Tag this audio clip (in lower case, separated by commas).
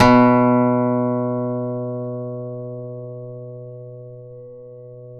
guitar, musical instrument, plucked string instrument, music, acoustic guitar